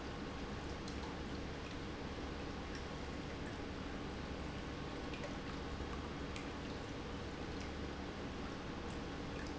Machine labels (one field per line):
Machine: pump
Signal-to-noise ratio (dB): 0 dB